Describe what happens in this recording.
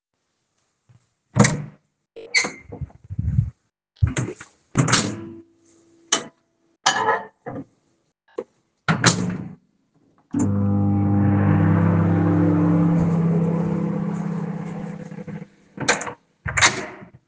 I opened the door and went to the microwave. Then I placed an item inside and started the microwave. After that, I left the room.